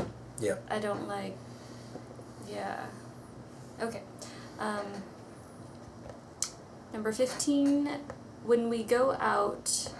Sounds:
inside a small room
speech

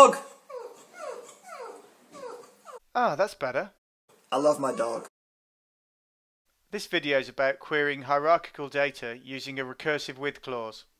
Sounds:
speech

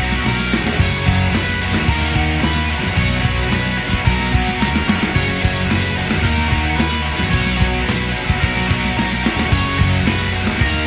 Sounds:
music

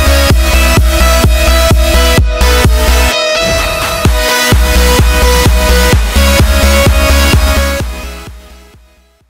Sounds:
music

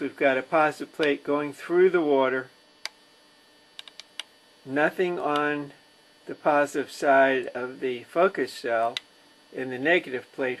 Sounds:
speech
tap

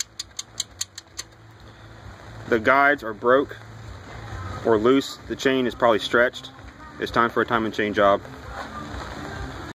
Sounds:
music
speech

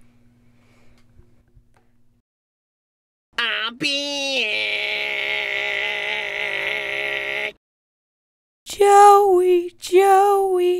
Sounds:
silence
speech

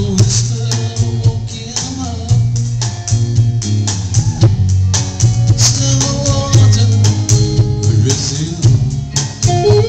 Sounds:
music

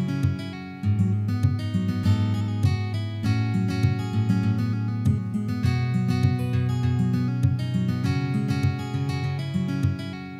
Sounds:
musical instrument
strum
acoustic guitar
music
guitar
plucked string instrument

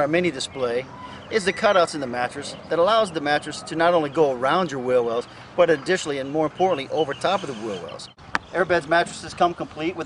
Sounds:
speech

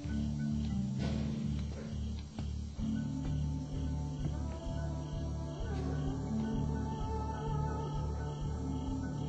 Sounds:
music

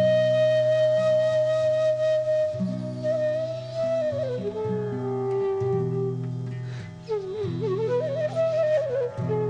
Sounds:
flute
music
tender music

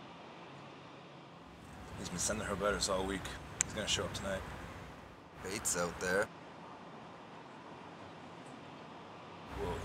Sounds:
speech

